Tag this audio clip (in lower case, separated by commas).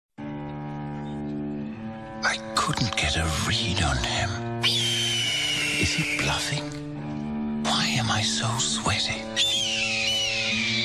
music, speech